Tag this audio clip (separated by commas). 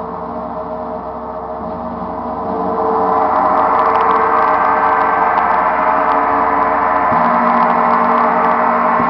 Gong